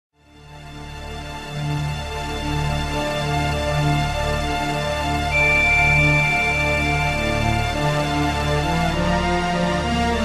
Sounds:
Video game music

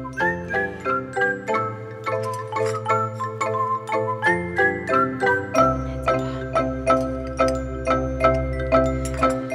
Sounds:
Music, Glockenspiel, Speech

